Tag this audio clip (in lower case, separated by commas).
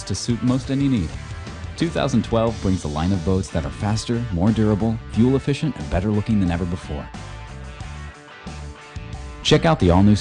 music, speech